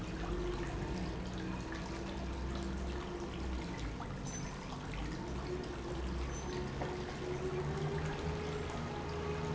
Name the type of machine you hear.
pump